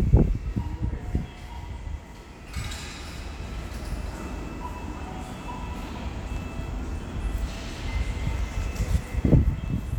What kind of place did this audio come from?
subway station